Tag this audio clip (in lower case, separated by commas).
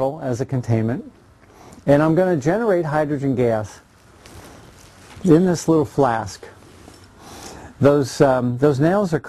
speech